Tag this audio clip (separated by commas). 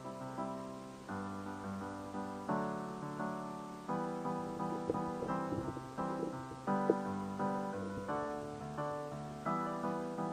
Video game music, Music